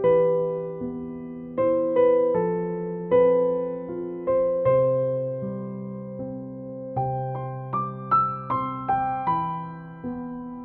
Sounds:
lullaby
music

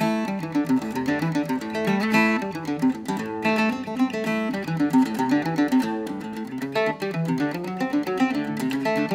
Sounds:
playing mandolin

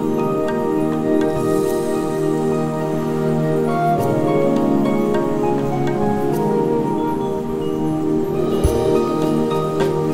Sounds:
music

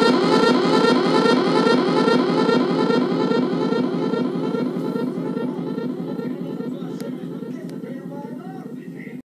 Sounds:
siren

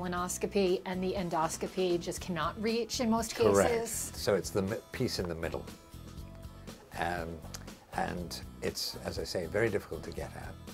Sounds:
speech
music

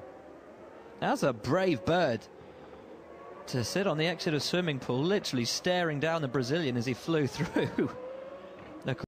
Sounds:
speech

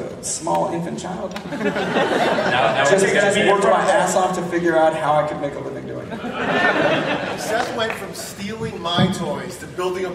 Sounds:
speech

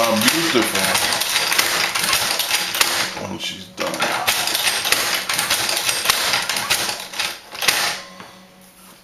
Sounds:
speech
sewing machine
using sewing machines

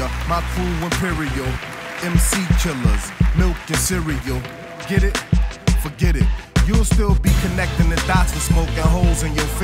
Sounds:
electronica
music

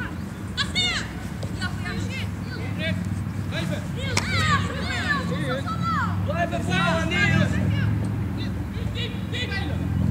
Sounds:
speech

